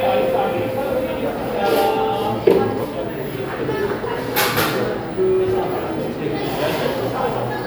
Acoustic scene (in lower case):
cafe